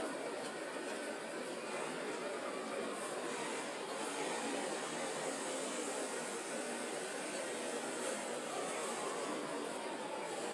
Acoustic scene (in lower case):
residential area